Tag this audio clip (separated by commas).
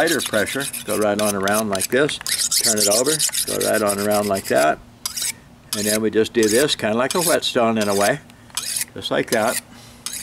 sharpen knife